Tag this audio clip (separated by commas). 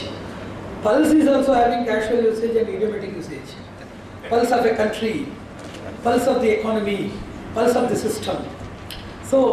Speech, Male speech